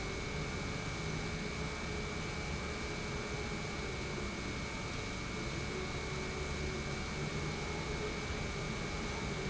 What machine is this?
pump